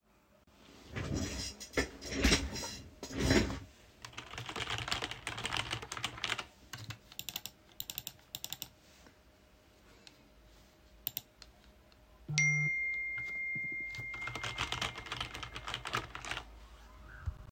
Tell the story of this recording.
I was sitting at my desk typing on the keyboard. During typing my phone produced a notification sound on the desk.